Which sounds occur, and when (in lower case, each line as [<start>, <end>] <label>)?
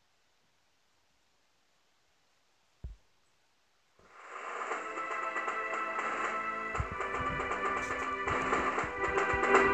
[0.00, 9.73] video game sound
[3.92, 9.73] music